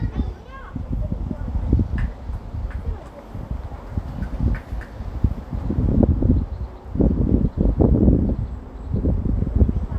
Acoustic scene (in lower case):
residential area